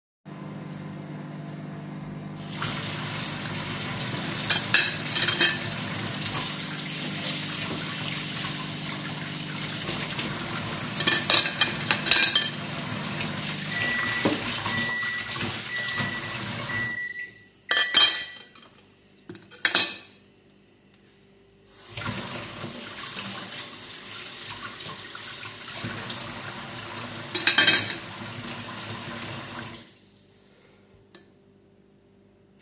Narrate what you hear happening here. The microwave was running, and I started washing the dishes. I turned the faucet on and off intermittently while handling cutlery. The microwave timer went off during this time.